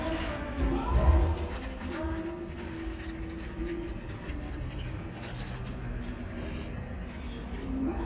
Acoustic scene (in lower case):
restaurant